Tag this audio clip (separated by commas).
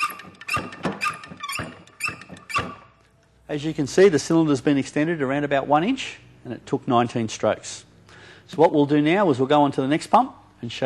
Speech